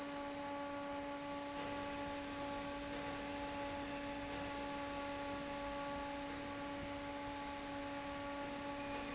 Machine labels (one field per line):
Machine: fan